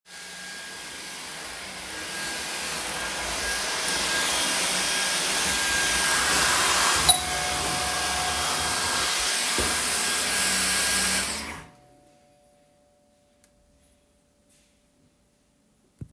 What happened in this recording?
I was vacuuming when the doorbell rang, so I stopped vacuuming to answer.